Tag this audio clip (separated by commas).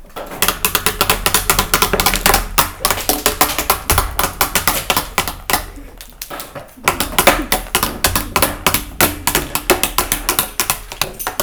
Tap